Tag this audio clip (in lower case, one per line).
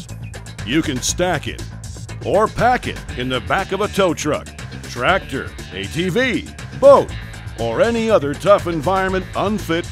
speech
music